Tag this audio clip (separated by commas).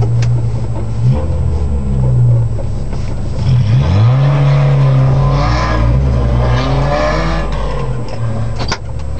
Speech, Car, Vehicle, Motor vehicle (road)